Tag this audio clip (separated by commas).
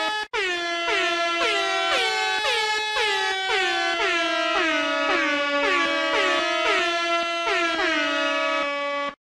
Music